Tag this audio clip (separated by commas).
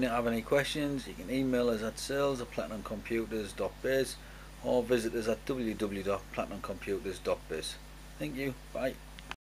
Speech